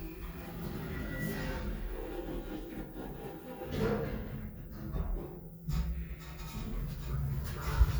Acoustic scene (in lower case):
elevator